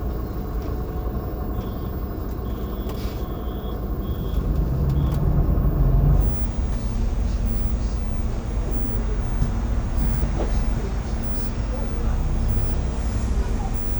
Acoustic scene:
bus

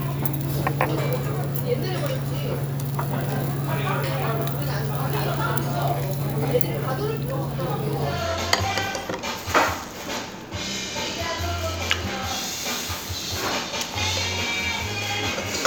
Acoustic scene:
restaurant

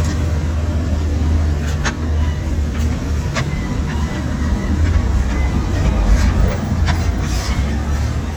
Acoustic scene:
street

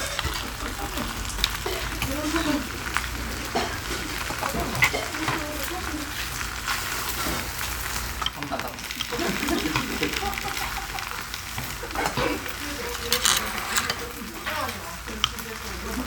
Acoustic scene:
restaurant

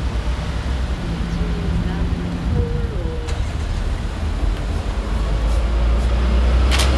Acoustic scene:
street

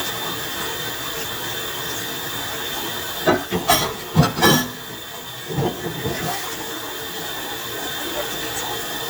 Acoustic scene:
kitchen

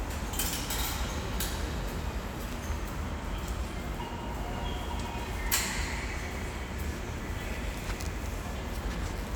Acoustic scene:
subway station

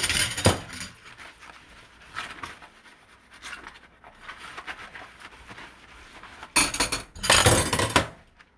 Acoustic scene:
kitchen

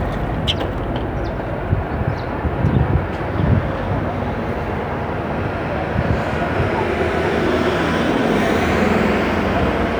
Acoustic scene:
street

